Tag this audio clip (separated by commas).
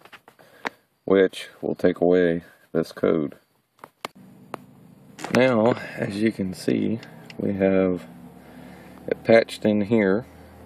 Vehicle, Speech, Motor vehicle (road)